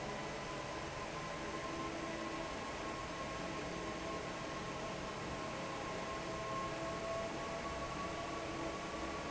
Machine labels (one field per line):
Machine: fan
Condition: normal